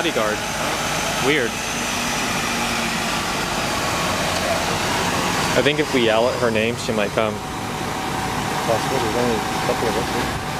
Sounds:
Vehicle, Bus, Speech

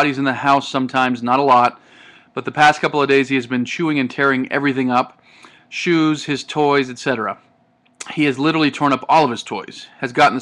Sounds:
Speech

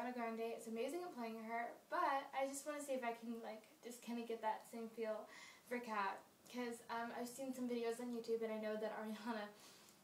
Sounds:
Speech

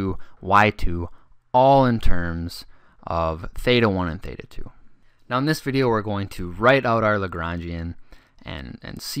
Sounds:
Speech

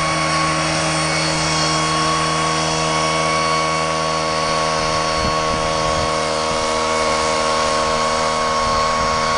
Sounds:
Water vehicle

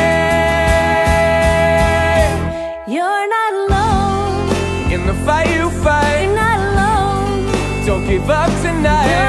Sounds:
Music, Happy music, Soundtrack music

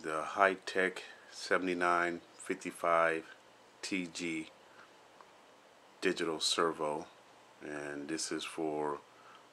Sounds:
Speech

